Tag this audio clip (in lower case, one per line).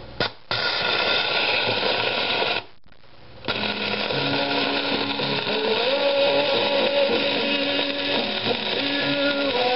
music